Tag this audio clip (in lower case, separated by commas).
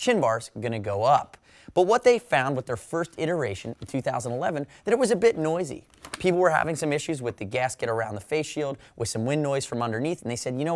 speech